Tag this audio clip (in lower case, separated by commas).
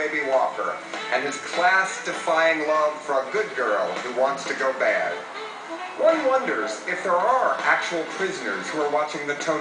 music, speech